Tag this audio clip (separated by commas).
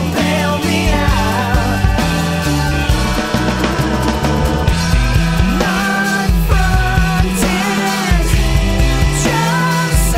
Music, Singing, Grunge